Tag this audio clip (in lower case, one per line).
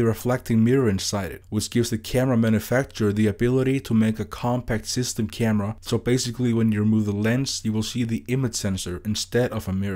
speech